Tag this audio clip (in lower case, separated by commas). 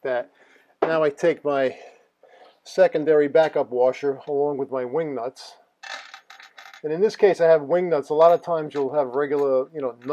inside a small room, speech